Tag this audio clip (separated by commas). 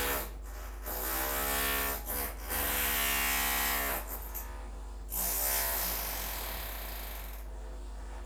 Tools